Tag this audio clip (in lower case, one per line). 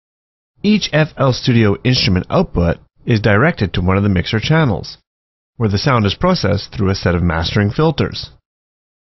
speech